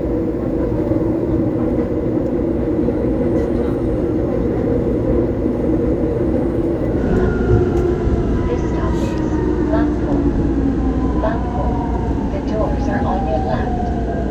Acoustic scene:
subway train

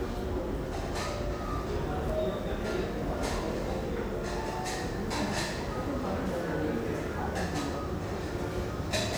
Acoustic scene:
crowded indoor space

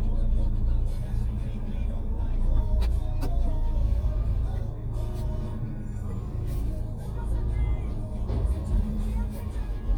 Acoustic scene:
car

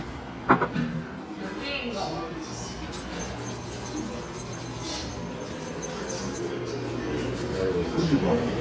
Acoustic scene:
restaurant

